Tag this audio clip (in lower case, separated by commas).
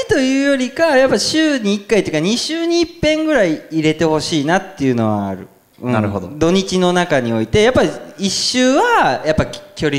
inside a large room or hall, speech